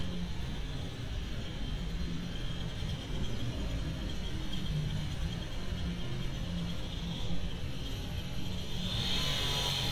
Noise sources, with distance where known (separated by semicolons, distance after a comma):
small-sounding engine